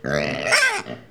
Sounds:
Animal, livestock

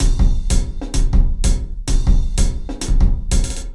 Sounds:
Percussion, Music, Musical instrument, Drum kit

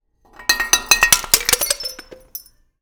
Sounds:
Shatter, Glass

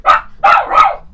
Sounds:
Dog, Bark, Animal, Domestic animals

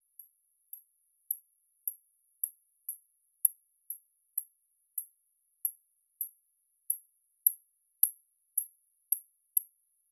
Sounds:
Wild animals, Animal, Insect

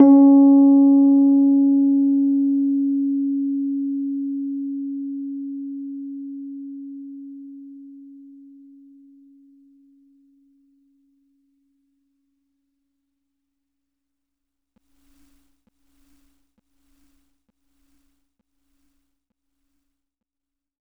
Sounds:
Music, Piano, Keyboard (musical), Musical instrument

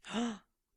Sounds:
Gasp, Breathing, Respiratory sounds

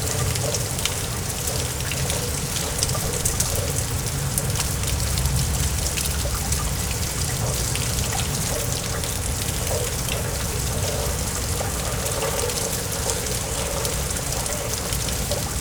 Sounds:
Water, Rain

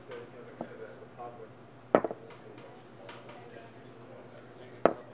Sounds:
Glass

